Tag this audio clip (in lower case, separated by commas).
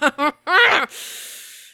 laughter, human voice